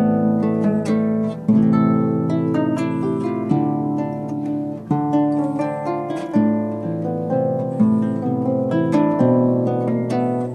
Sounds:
Harp, playing harp, Pizzicato

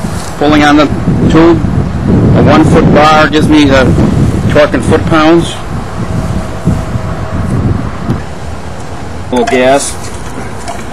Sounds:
Speech

